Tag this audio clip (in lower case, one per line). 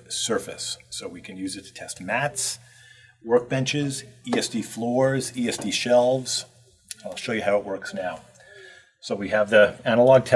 speech